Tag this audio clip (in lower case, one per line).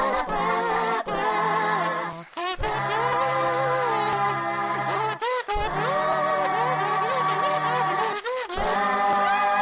music